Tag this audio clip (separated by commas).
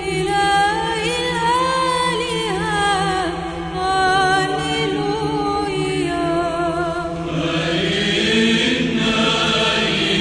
Choir, Music, Female singing